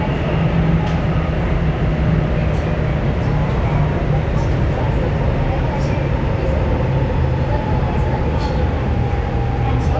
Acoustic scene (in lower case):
subway train